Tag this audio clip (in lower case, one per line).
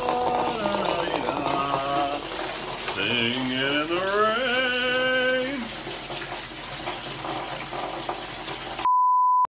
raindrop
rain on surface